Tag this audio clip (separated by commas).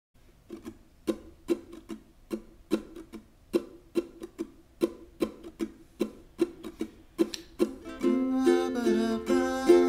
playing ukulele